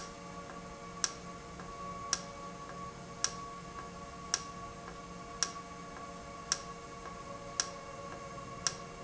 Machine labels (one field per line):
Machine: valve